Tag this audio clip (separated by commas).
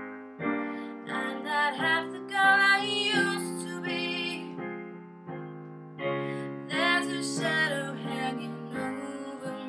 Music, Female singing